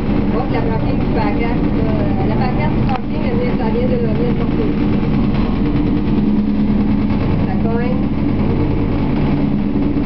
A woman speaks midst a running motor